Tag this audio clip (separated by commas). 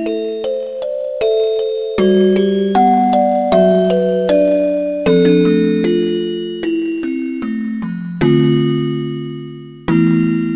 Music